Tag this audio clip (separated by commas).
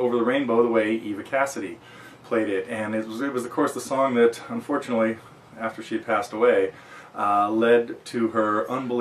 Speech